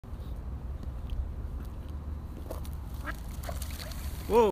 Quack and man exclaiming